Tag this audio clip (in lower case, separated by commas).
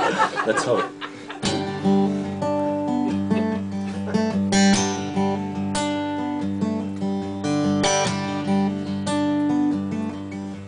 music, speech